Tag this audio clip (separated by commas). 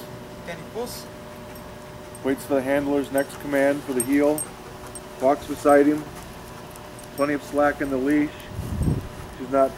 Speech